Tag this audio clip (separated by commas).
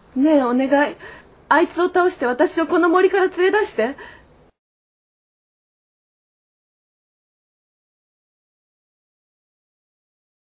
Speech, outside, rural or natural